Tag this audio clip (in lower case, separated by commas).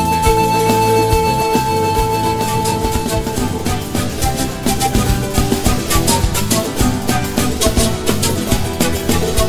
new-age music, music